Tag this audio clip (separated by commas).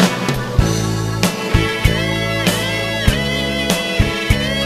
Music